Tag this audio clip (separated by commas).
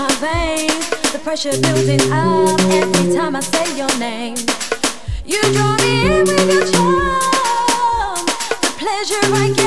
Music